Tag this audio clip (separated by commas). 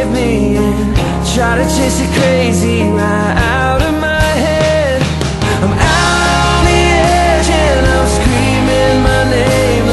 Music